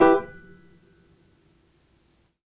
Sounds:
music, musical instrument, keyboard (musical), piano

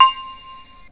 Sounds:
keyboard (musical), musical instrument, music

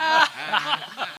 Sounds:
human voice, laughter

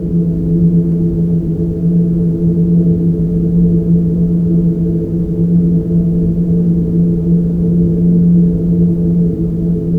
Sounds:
wind

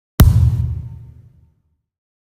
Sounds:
thump

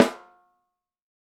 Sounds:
snare drum, drum, music, musical instrument, percussion

